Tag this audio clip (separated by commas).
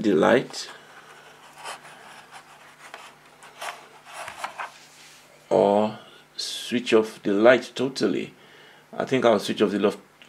Speech